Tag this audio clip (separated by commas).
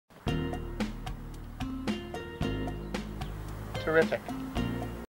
Music, Speech